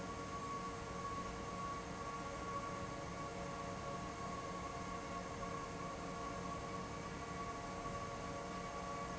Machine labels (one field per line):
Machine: fan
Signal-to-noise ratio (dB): 0 dB